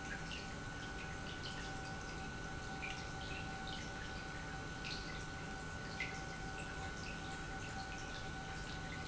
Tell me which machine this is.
pump